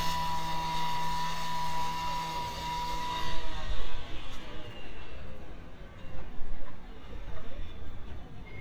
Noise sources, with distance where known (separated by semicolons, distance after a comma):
small or medium rotating saw, near